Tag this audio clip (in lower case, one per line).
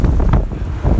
wind